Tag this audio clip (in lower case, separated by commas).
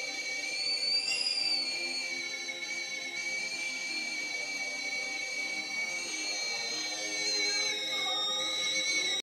whistle